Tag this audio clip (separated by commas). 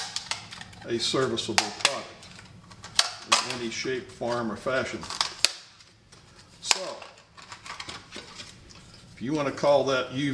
Speech, inside a small room